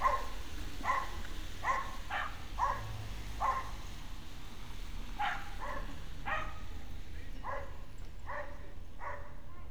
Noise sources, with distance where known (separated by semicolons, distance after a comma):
dog barking or whining, near